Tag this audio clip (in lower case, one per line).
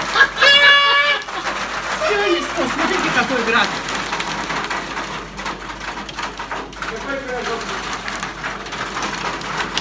hail